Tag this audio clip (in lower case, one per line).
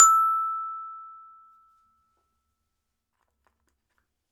percussion
mallet percussion
music
musical instrument
glockenspiel